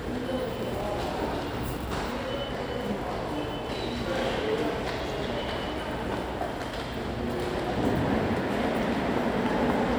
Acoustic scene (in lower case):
subway station